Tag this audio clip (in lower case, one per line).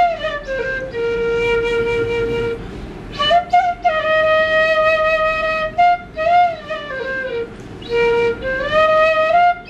musical instrument
music
flute
wind instrument